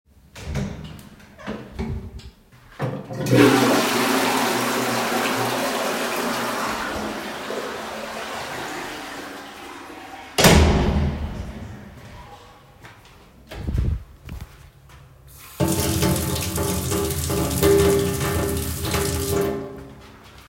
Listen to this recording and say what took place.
I carried the device in my hand during the recording. I opened the door, flushed the toilet, and then the door was closed. After that, I turned on running water. The target events occurred sequentially without overlap.